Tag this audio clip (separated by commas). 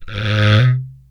Wood